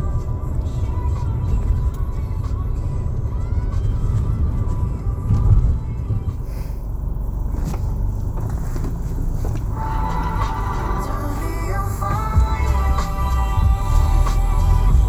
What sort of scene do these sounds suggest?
car